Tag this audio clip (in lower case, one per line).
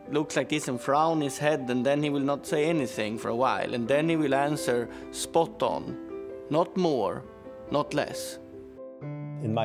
speech
music